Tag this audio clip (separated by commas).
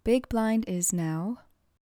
Speech, Human voice, woman speaking